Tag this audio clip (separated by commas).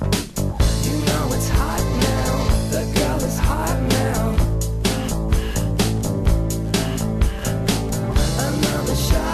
Music